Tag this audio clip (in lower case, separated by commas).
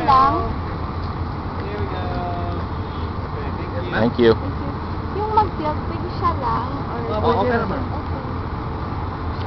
speech, outside, rural or natural